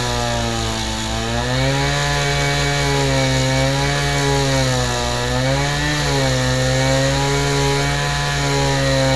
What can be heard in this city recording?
unidentified powered saw